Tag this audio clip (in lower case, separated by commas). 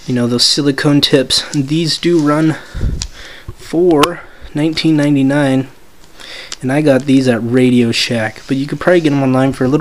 speech